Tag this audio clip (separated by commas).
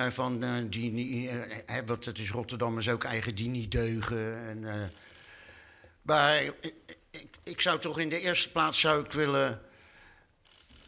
man speaking, Speech, monologue